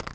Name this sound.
plastic object falling